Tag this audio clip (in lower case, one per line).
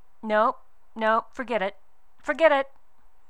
human voice
female speech
speech